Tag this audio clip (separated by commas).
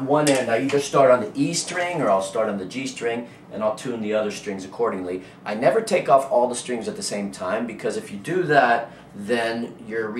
Speech